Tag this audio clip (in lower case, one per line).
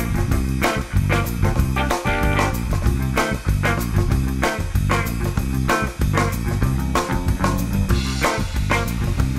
music